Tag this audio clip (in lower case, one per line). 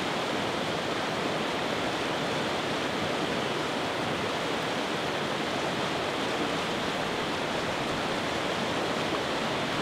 stream
stream burbling